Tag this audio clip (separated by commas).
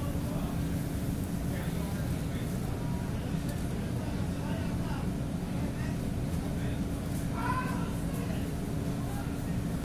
Speech